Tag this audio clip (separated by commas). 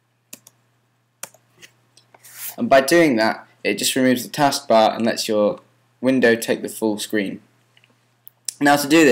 Speech